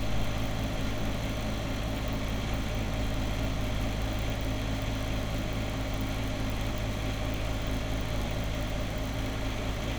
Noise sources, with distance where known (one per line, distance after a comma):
engine of unclear size, near